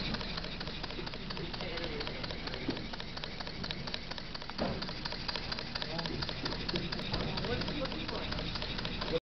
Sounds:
speech
engine

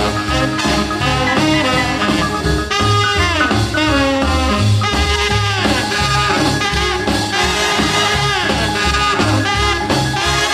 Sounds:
orchestra
music

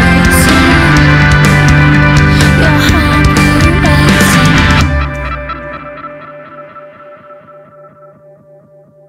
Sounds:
music

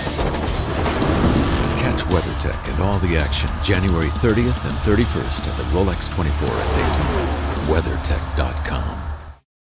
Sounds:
music
speech
television

